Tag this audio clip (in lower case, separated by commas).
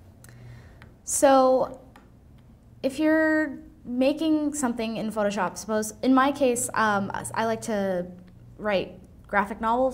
speech